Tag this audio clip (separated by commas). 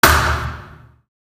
Thump